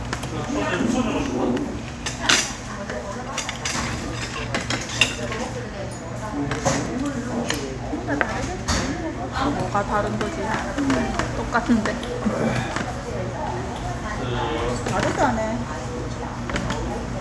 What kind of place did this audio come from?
restaurant